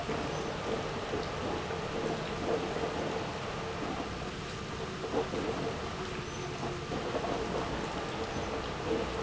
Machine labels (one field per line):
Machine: pump